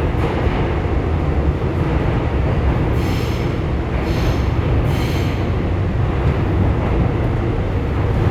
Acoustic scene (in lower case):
subway train